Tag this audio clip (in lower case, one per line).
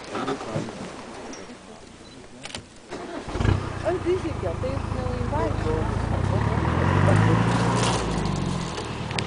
speech